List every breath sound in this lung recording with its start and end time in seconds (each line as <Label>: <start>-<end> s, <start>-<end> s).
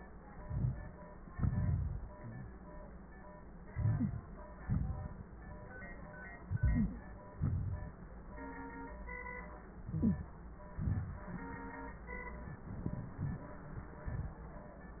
Inhalation: 0.34-1.06 s, 3.65-4.33 s, 6.42-7.07 s, 9.83-10.35 s, 12.49-13.46 s
Exhalation: 1.33-2.58 s, 4.61-5.36 s, 7.36-7.96 s, 10.80-11.57 s, 14.10-14.41 s
Wheeze: 2.23-2.54 s, 3.99-4.11 s